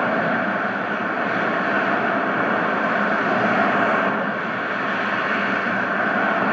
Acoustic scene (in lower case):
street